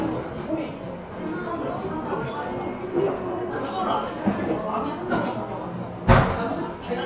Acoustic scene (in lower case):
cafe